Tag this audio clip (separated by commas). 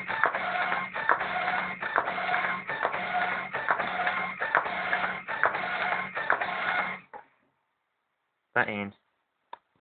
Printer, Speech